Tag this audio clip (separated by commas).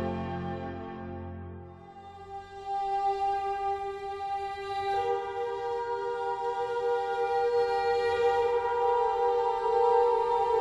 Tender music, Music